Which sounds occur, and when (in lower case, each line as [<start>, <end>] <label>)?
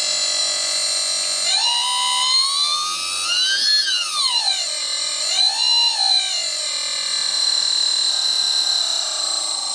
[0.00, 9.74] mechanisms